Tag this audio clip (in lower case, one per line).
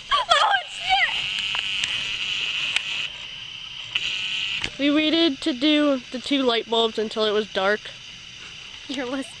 microwave oven